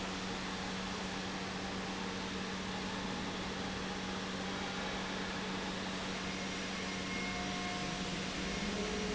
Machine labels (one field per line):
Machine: pump